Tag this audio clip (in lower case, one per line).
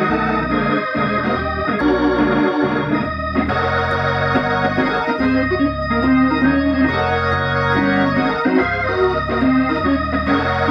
playing hammond organ